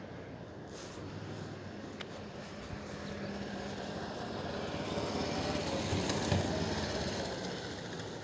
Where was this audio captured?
in a residential area